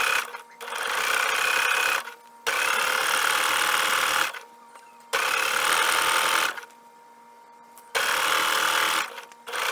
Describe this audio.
Sewing machine turning on and off